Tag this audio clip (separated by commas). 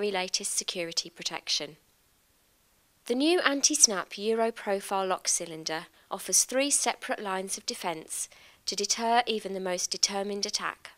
Speech